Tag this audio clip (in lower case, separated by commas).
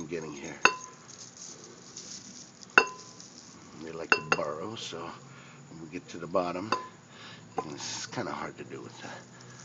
speech